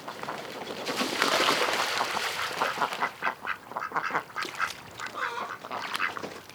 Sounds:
fowl, livestock, water, wild animals, bird, animal

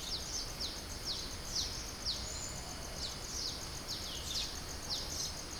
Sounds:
animal, wild animals, bird

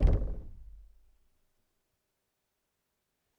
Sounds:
knock, door, home sounds

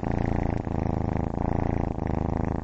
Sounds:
cat, animal, purr, pets

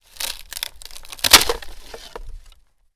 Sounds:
wood, crack

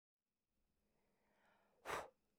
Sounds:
breathing, respiratory sounds

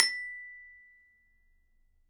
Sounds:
percussion, mallet percussion, glockenspiel, music, musical instrument

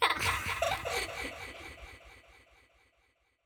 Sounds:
laughter, human voice

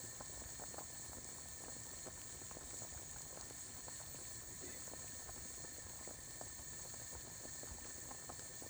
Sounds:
boiling, liquid

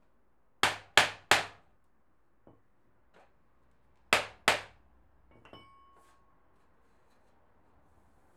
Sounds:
hammer, tools

